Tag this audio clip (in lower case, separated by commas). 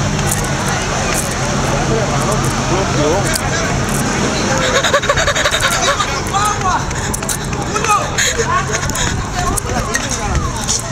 speech